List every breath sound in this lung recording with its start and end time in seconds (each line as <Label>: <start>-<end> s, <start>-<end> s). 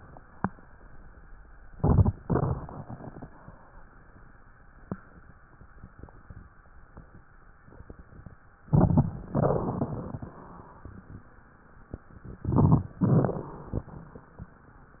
Inhalation: 1.59-2.22 s, 8.64-9.29 s, 12.36-12.96 s
Exhalation: 2.19-3.28 s, 9.34-10.60 s, 12.98-14.22 s
Crackles: 1.55-2.20 s, 2.19-3.28 s, 9.34-10.60 s, 12.98-14.22 s